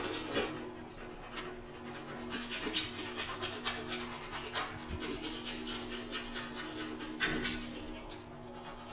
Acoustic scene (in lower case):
restroom